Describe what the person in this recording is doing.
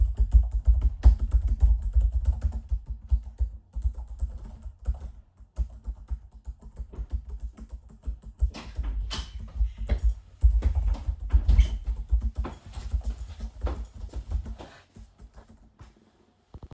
I was doing my work in laptop and somebody come into my room